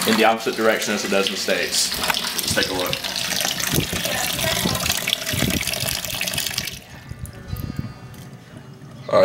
A man talks while some liquid flows